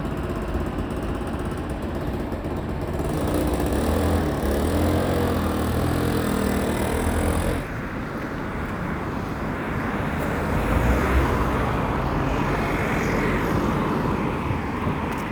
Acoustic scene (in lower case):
residential area